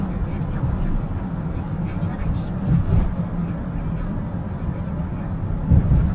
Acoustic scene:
car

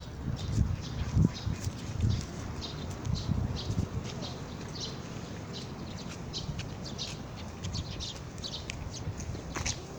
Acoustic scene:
park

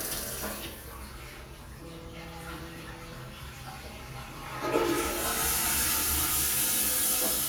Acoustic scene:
restroom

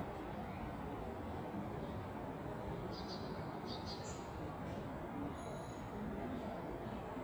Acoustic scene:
park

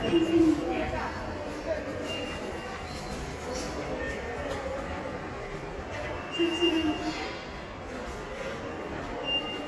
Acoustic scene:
subway station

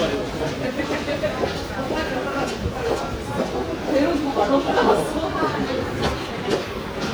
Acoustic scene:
subway station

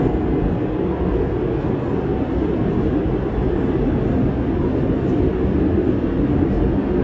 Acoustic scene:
subway train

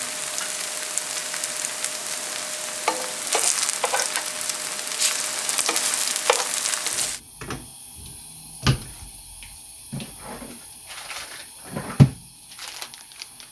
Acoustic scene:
kitchen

